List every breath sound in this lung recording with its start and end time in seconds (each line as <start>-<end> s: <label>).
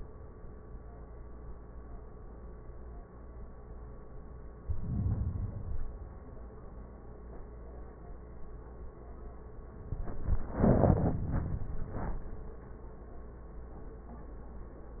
4.62-5.53 s: inhalation
5.56-6.74 s: exhalation